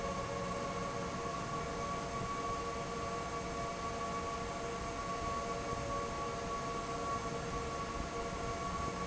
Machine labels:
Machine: fan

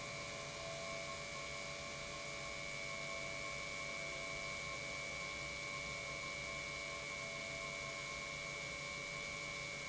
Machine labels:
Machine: pump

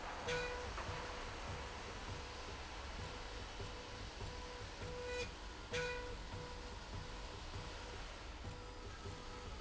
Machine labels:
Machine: slide rail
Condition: normal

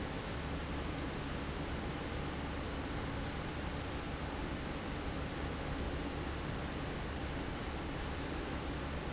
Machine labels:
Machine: fan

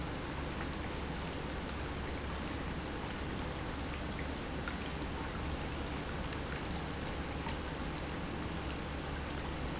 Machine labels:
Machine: pump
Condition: normal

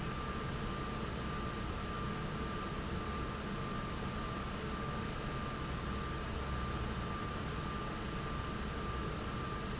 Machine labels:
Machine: fan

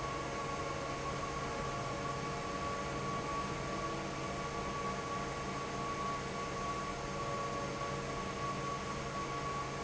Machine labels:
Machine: fan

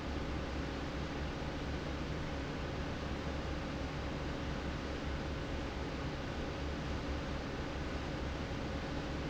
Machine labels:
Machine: fan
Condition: normal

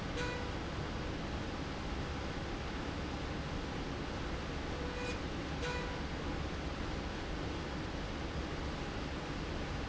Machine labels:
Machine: slide rail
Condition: normal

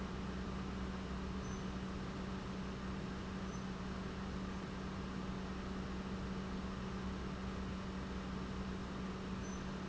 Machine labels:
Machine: pump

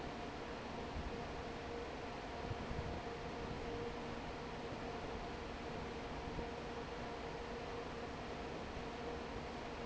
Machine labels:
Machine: fan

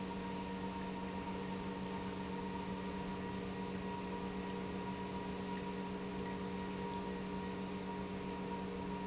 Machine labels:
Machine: pump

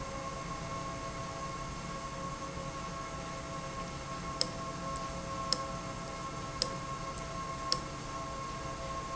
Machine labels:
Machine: valve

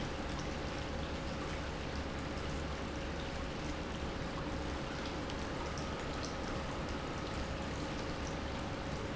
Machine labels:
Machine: pump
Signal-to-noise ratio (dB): -6 dB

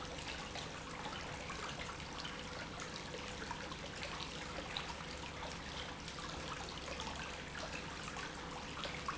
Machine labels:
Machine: pump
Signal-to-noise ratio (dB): 6 dB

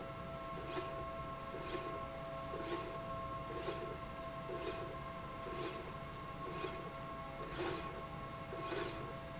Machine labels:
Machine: slide rail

